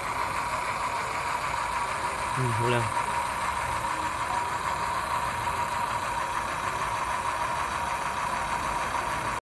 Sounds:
Speech, Vehicle

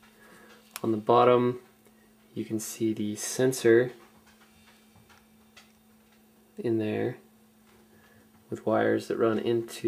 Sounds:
Speech

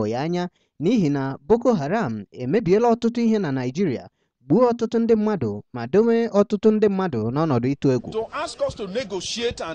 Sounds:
Speech

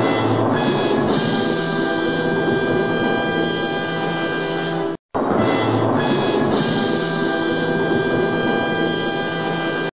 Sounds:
Music

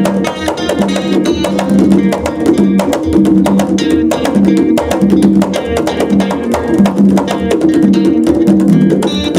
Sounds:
Percussion, Music

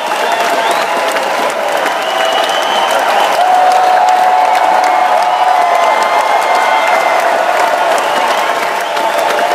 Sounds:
Sound effect, Crowd, Applause

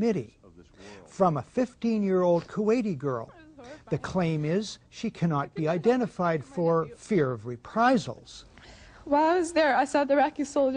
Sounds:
Narration, Speech, Male speech, woman speaking

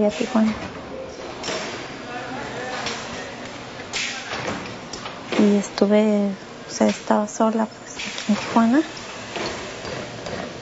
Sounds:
inside a large room or hall, Speech

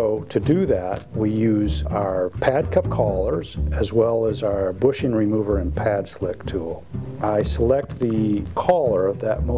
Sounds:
Speech, Music

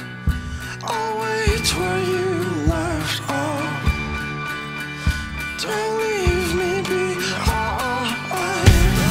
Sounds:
Music

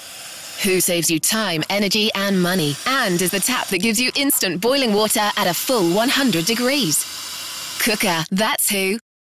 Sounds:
Speech

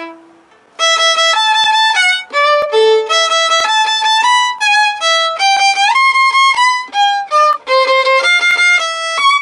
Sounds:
Violin, Musical instrument, Music

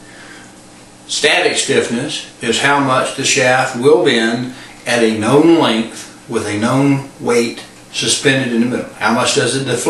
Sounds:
Speech

